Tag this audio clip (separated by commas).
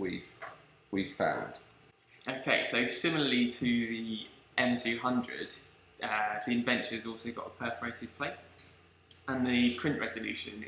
Speech